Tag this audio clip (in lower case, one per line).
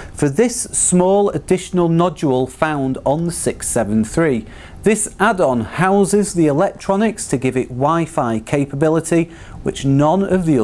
speech